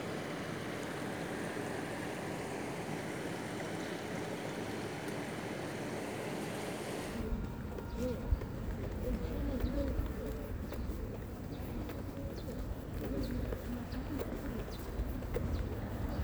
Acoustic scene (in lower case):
park